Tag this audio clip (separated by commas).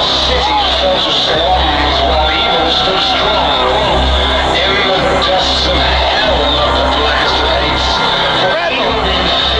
Whoop, Music, Speech